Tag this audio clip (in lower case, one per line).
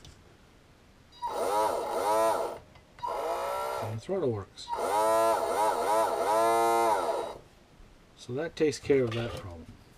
speech
inside a small room